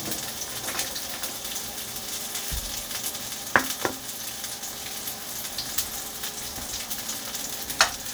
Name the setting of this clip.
kitchen